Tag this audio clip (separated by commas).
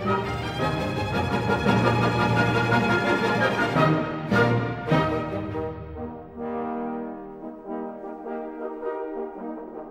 Music